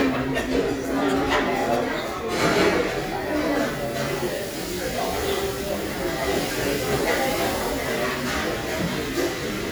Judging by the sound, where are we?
in a crowded indoor space